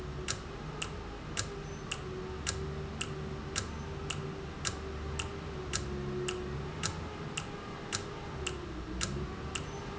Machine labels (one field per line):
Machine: valve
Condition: normal